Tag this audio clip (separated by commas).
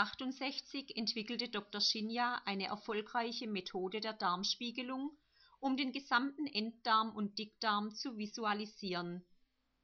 Speech